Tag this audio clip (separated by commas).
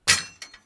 Tools